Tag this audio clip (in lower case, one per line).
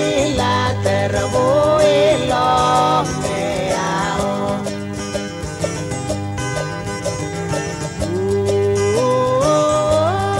music